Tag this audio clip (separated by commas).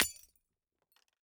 Shatter, Glass